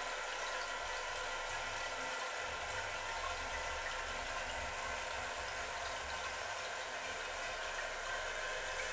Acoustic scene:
restroom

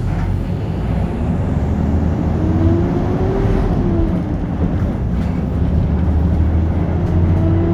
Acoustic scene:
bus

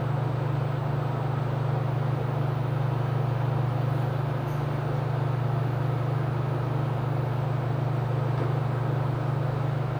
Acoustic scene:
elevator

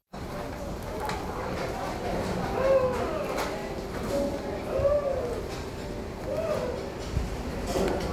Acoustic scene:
restaurant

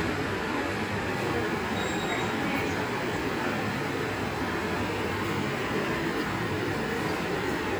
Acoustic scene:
subway station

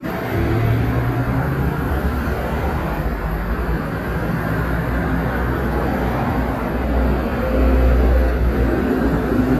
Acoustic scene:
street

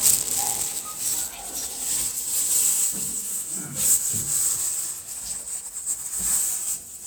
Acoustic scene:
elevator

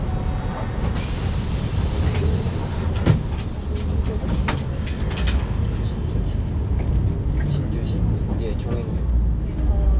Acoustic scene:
bus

